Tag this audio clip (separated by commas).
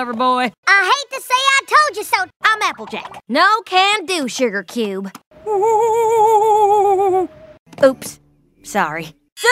Sound effect, Speech